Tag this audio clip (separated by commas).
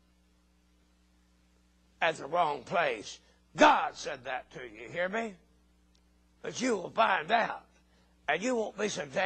Speech